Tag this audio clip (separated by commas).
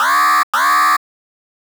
Alarm